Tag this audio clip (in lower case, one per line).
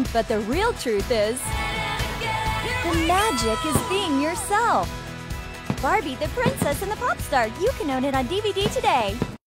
speech
music